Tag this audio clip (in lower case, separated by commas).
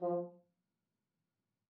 brass instrument, music, musical instrument